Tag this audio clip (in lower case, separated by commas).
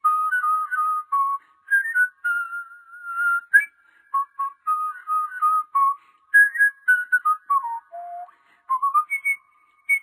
people whistling